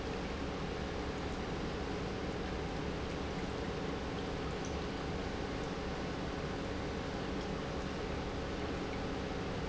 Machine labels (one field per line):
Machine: pump